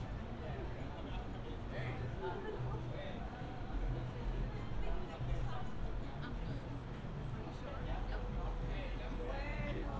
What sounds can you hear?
person or small group talking